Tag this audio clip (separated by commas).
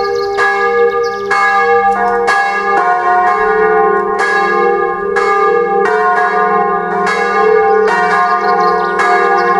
Music, Bell